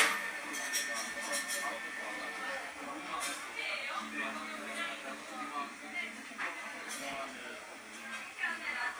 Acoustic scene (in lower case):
cafe